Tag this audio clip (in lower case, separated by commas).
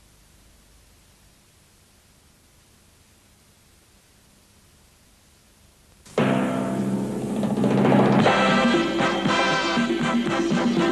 television, music